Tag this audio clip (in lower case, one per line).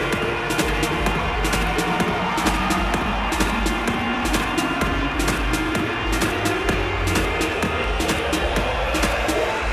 music
musical instrument